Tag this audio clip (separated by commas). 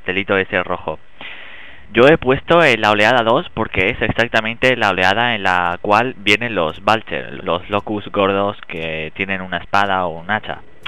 Speech